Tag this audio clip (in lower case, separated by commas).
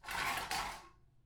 dishes, pots and pans, home sounds